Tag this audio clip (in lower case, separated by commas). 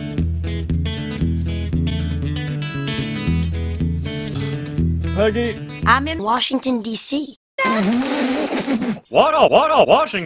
speech, child speech, music